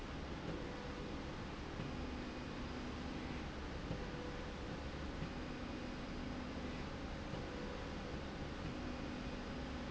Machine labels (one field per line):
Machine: slide rail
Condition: normal